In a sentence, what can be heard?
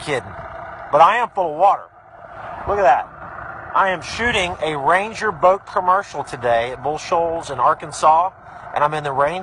A man gives a speech